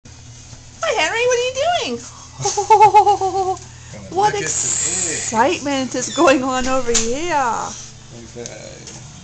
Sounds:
Speech

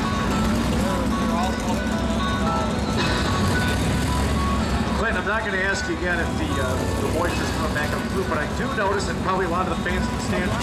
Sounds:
Car, Car passing by, Vehicle, Motor vehicle (road), Speech

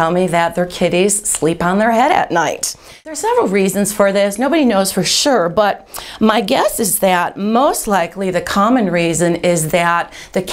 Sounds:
Speech

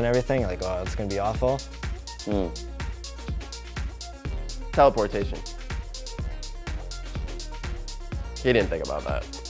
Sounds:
Speech, Music

